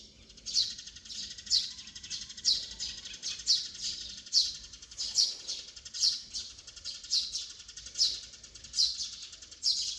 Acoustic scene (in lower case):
park